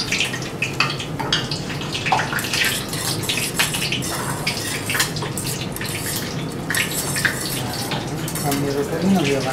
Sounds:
Water

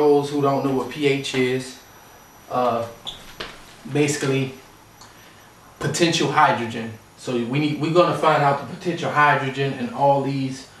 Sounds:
Speech

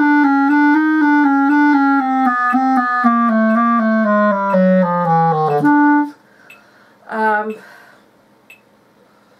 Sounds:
Clarinet, playing clarinet

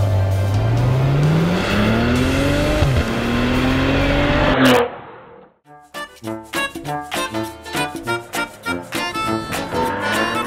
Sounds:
Tire squeal, Car, Vehicle

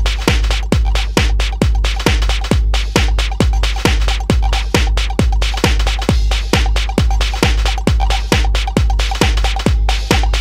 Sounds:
Techno, Music

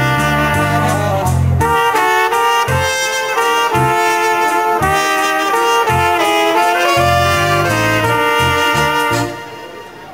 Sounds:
Music

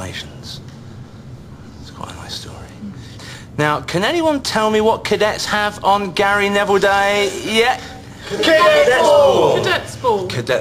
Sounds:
Speech

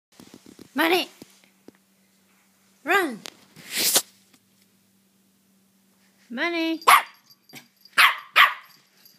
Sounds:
Animal, Dog, Growling, Bark, Speech, pets

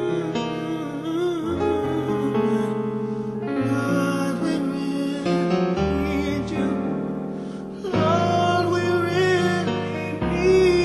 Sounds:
Music, Soul music, Gospel music

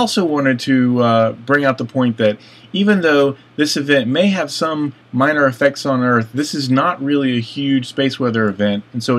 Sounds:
Speech

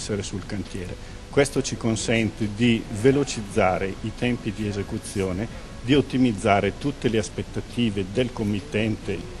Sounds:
Speech

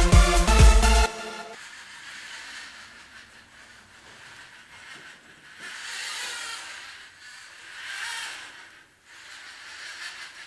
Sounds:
inside a small room, Music

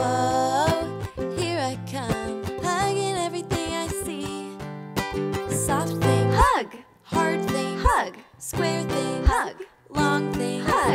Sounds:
Music

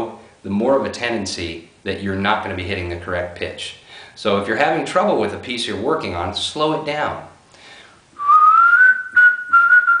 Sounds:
Whistling

